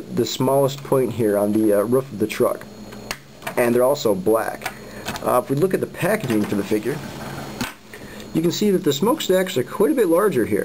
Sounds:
speech

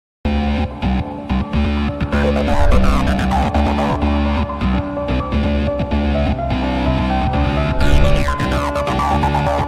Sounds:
music

